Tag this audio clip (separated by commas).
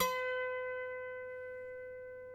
Music, Harp, Musical instrument